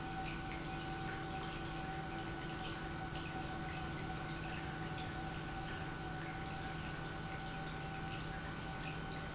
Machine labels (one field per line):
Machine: pump